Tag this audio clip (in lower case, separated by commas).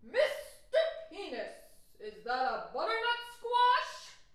shout, female speech, yell, human voice, speech